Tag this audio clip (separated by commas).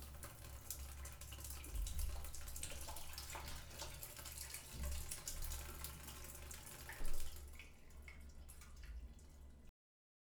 Domestic sounds, Sink (filling or washing)